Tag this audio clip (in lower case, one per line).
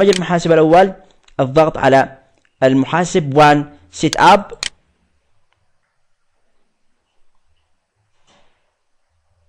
speech